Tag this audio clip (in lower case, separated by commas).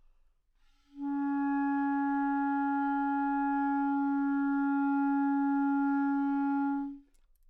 musical instrument, music, woodwind instrument